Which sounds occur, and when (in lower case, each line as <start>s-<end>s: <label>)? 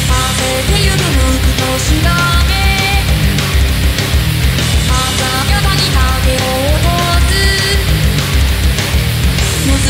0.0s-3.1s: female singing
0.0s-9.8s: music
4.9s-7.9s: female singing
9.6s-9.8s: female singing